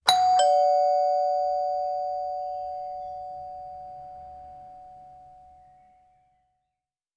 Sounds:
home sounds, Alarm, Door, Doorbell

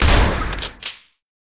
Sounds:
Gunshot, Explosion

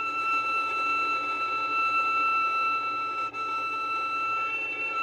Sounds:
Musical instrument, Music, Bowed string instrument

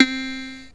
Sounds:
Keyboard (musical), Musical instrument, Music

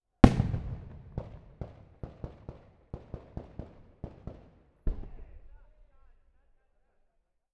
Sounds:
Explosion, Fireworks

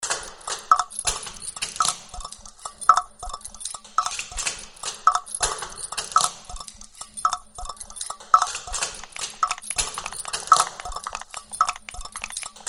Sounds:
Tick

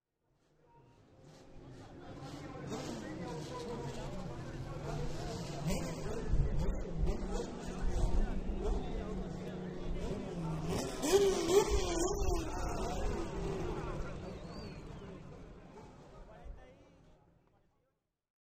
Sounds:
vroom, Car, Vehicle, Engine, Motor vehicle (road), auto racing

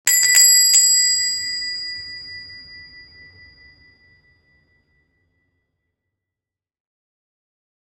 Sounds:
Bell, Door, home sounds

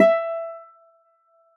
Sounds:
Acoustic guitar, Music, Plucked string instrument, Musical instrument, Guitar

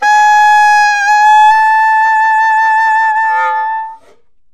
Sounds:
woodwind instrument, Music, Musical instrument

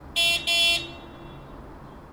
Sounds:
Traffic noise, Vehicle horn, Car, Vehicle, Motor vehicle (road), Alarm

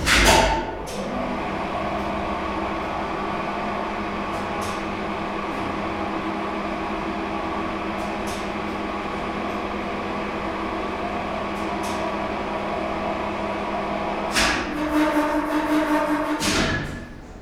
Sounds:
Mechanisms

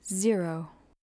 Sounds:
Human voice, Speech, woman speaking

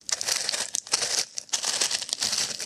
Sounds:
footsteps

